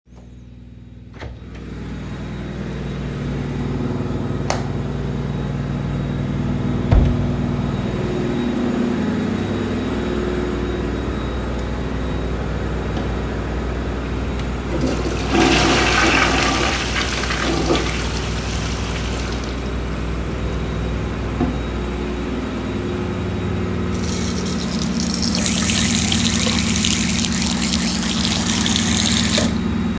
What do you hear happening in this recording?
I opened the bathroom door and turned on the light. I flushed the toilet and then turned on the tap to wash my hands before turning it off again.